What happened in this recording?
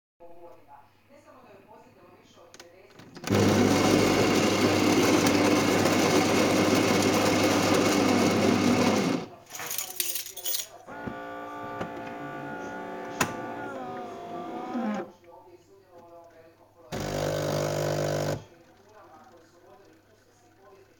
I made me some coffee in the coffee machine and handed the car keys on the kitchen counter to my brother, after the beans were grinded.